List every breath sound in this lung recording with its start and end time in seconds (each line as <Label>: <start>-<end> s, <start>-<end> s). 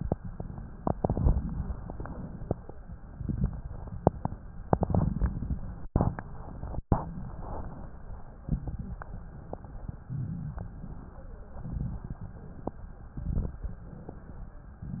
Inhalation: 0.88-1.66 s, 3.21-3.97 s, 4.69-5.54 s, 5.92-6.77 s, 8.44-9.10 s, 10.04-10.71 s, 11.65-12.64 s, 13.15-13.83 s, 14.82-15.00 s
Exhalation: 0.00-0.78 s, 1.69-2.57 s, 7.00-8.39 s, 9.10-9.98 s, 10.73-11.61 s
Crackles: 0.88-1.66 s, 3.21-3.97 s, 4.69-5.54 s, 5.92-6.77 s, 8.44-9.10 s, 10.04-10.71 s, 11.65-12.64 s, 13.15-13.83 s, 14.82-15.00 s